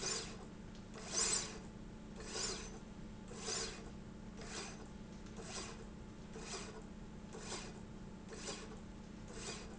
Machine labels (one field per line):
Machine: slide rail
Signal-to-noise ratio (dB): 6 dB